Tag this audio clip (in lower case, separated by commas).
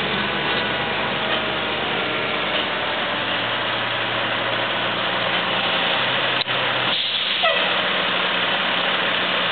truck, vehicle, motor vehicle (road), engine